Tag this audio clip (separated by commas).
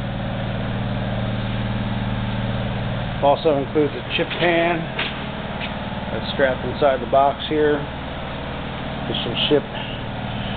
inside a large room or hall, Speech